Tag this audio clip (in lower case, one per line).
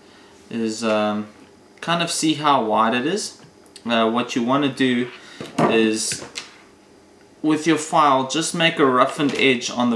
speech